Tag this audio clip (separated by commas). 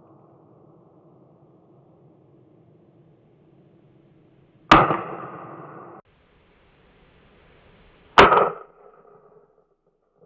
outside, rural or natural